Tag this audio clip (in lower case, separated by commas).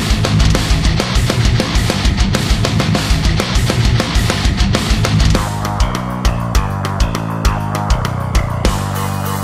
music, musical instrument, snare drum, drum, cymbal, drum kit